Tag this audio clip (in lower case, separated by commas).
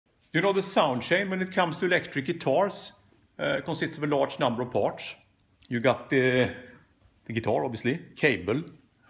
speech